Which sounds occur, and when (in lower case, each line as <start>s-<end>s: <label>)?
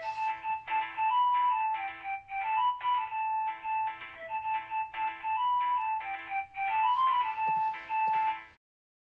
0.0s-8.6s: music
8.0s-8.1s: generic impact sounds